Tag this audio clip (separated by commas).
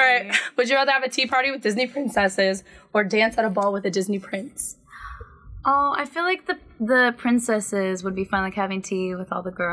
monologue